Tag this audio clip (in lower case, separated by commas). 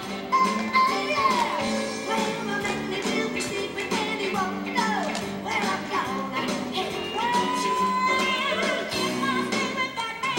music, tap